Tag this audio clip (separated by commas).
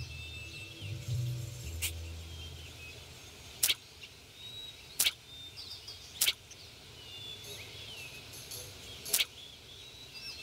bird call